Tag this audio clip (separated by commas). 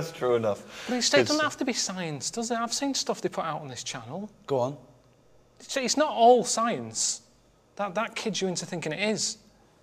Speech